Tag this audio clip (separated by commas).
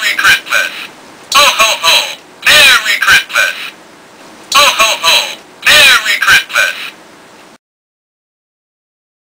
Speech